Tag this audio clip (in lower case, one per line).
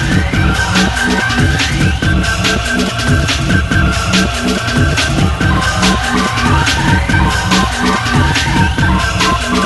music